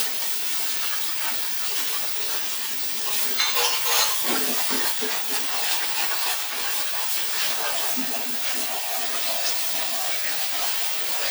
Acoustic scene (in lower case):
kitchen